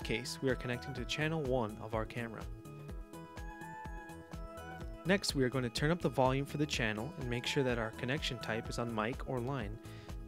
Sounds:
speech, music

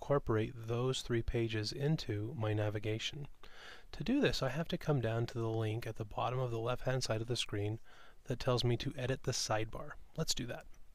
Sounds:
speech

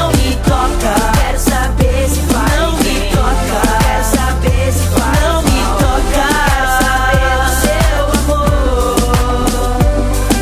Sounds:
music of africa, music, rhythm and blues

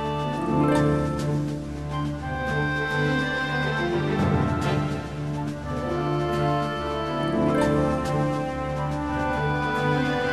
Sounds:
theme music, music, background music

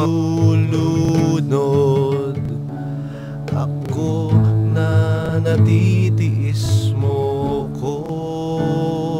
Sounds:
music, tender music

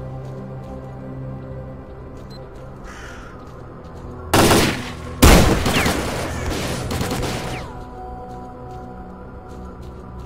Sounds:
fusillade

